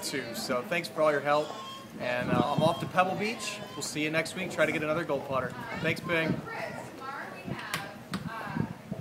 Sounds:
speech

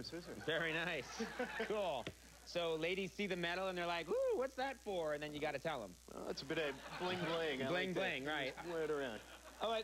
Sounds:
speech

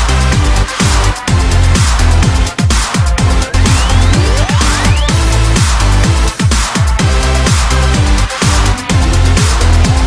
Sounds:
music

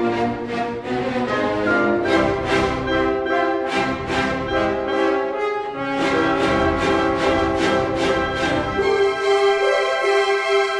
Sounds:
music, musical instrument, fiddle

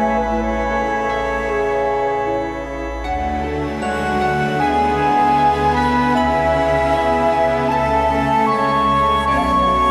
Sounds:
music

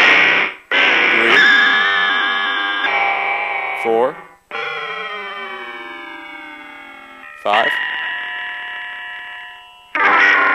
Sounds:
synthesizer, speech, effects unit

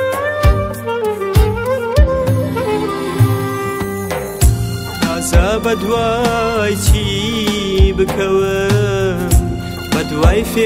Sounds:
blues, music

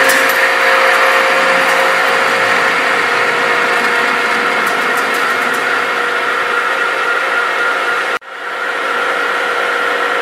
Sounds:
tools

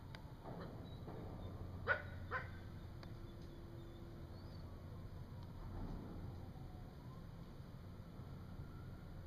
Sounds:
coyote howling

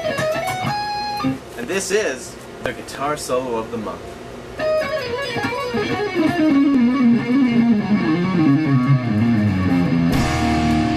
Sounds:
musical instrument, plucked string instrument, speech, music, guitar

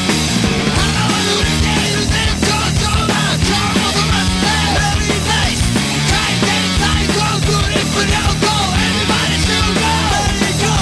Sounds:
music

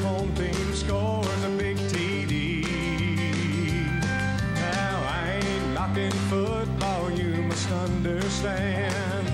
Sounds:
music

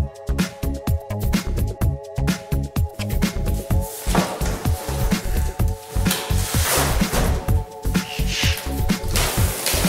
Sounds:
music

